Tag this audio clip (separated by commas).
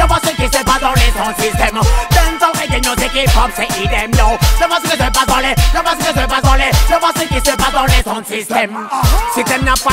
Music, Sound effect